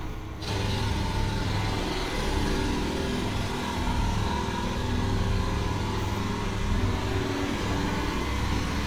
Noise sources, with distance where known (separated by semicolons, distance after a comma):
jackhammer, near